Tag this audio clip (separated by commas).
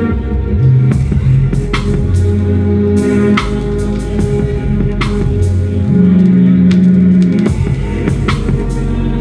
Music, Dubstep, Electronic music